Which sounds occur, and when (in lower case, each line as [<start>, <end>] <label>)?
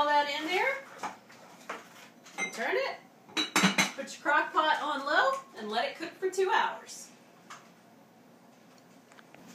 [0.00, 0.83] woman speaking
[0.00, 9.54] mechanisms
[0.93, 1.16] dishes, pots and pans
[1.41, 2.07] dishes, pots and pans
[2.24, 2.68] dishes, pots and pans
[2.50, 3.03] woman speaking
[3.32, 3.93] dishes, pots and pans
[3.99, 5.41] woman speaking
[5.55, 7.24] woman speaking
[7.49, 7.65] generic impact sounds
[8.48, 9.54] generic impact sounds